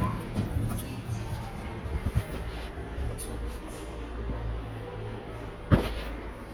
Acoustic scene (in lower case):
elevator